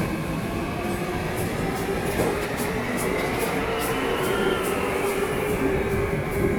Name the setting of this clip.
subway station